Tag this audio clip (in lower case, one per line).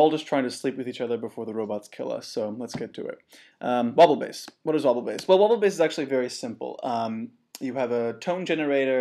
speech